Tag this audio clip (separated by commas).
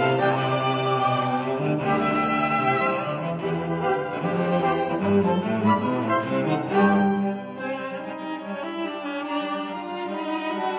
Music, Cello, Bowed string instrument, Musical instrument, String section